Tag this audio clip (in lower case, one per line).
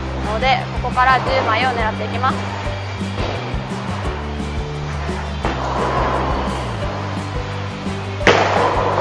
bowling impact